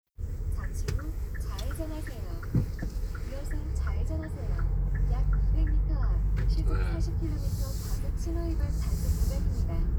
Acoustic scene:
car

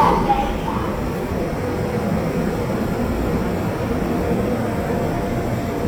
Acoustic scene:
subway train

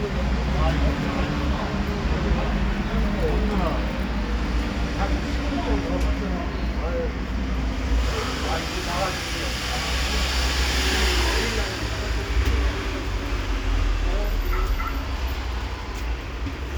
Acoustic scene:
street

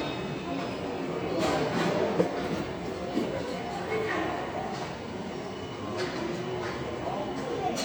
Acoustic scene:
subway station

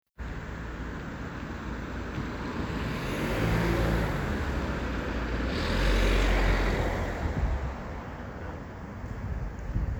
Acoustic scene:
street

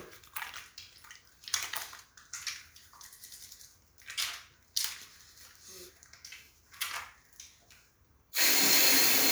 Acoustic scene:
restroom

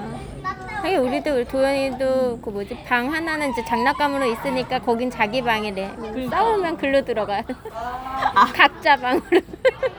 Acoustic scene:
park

